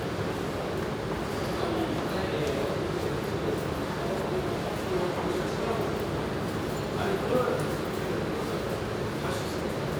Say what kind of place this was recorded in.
subway station